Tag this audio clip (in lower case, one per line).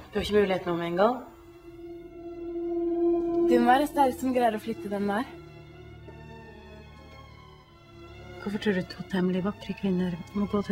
music
speech